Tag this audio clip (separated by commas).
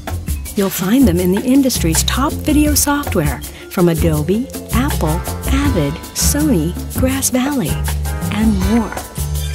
Music, Speech